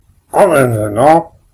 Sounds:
human voice, speech

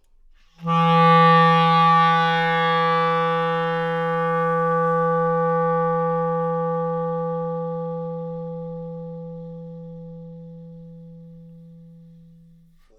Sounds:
music, wind instrument, musical instrument

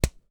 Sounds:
tools, hammer

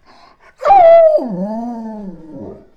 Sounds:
domestic animals, dog, animal

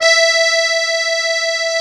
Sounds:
musical instrument, music, accordion

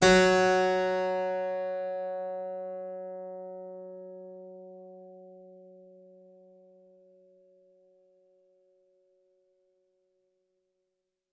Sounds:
musical instrument, music, keyboard (musical)

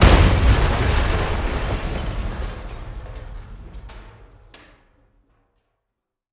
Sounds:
crushing, shatter, boom, explosion, glass

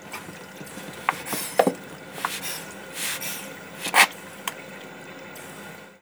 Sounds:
domestic sounds, sink (filling or washing)

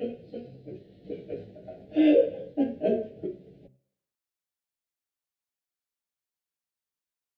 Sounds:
human voice, laughter

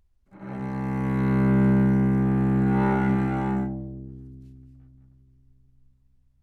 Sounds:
music, bowed string instrument, musical instrument

